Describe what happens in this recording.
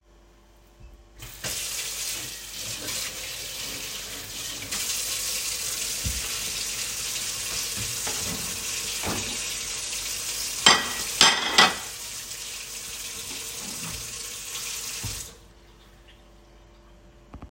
I turned on the sink and washed a plate. I dried it with a kitchen towel, opened a drawer, placed the plate inside, closed the drawer, and then turned off the sink.